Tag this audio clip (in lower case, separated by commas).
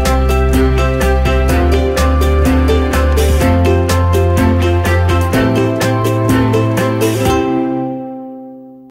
music